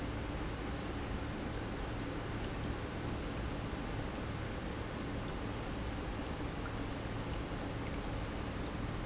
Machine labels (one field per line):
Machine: pump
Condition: normal